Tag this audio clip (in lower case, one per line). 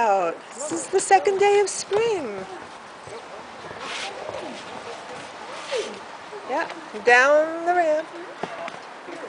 speech